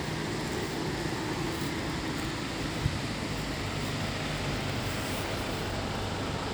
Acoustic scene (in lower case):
street